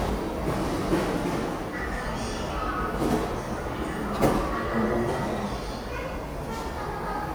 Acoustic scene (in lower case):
subway station